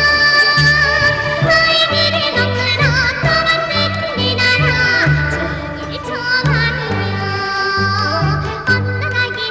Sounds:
Yodeling, Music

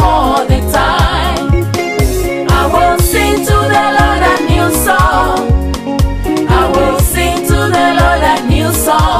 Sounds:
Music

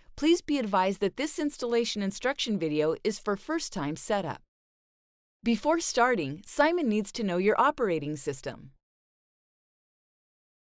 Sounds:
Speech

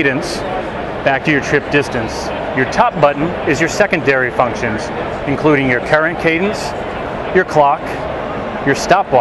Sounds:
Speech

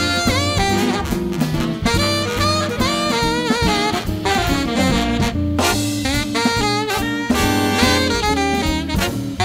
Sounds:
playing saxophone

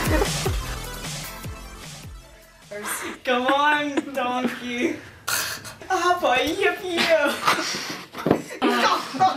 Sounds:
Music, inside a small room, Speech

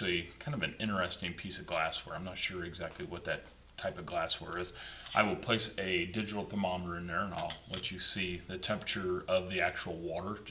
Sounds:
Speech

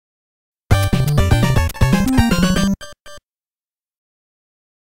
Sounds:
Video game music, Music

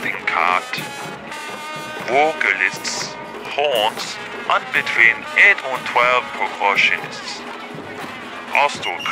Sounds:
Speech, Music

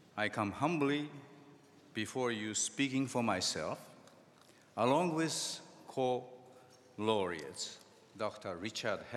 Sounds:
Speech, monologue, Male speech

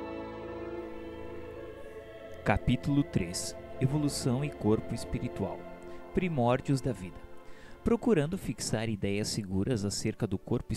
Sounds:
Speech, Music

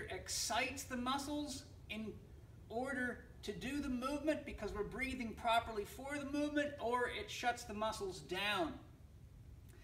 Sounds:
Speech

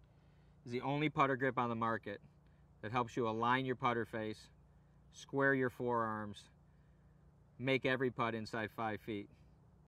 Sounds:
Speech

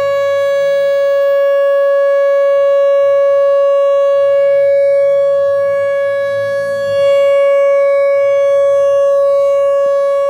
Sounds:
Civil defense siren, Siren

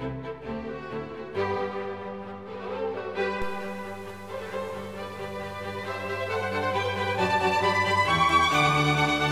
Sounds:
Music

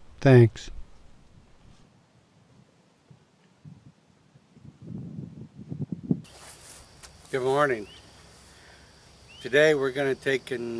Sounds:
Speech

